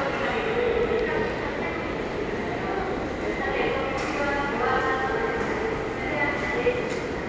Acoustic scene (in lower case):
subway station